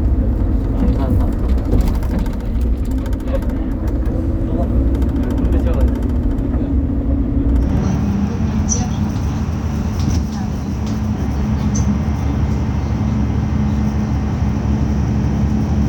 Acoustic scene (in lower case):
bus